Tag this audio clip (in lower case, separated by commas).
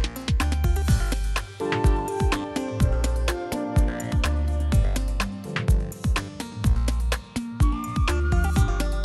music